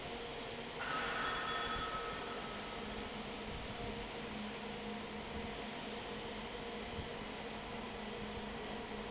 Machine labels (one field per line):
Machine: fan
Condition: normal